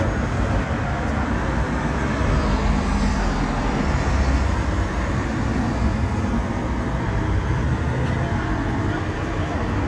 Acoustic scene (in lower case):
street